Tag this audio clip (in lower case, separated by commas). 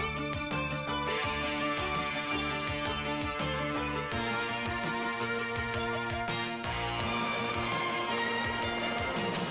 music